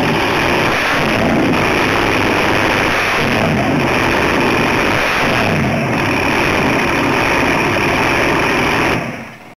Engine revving and running loudly